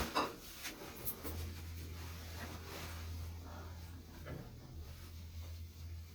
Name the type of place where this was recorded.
elevator